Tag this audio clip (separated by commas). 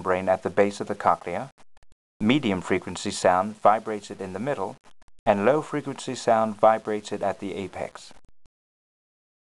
Speech